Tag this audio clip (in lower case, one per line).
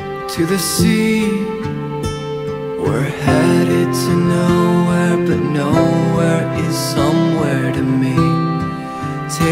music